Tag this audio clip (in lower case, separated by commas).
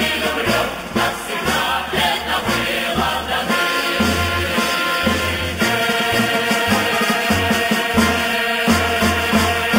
people marching